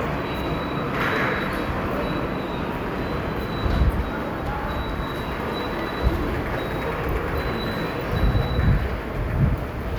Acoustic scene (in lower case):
subway station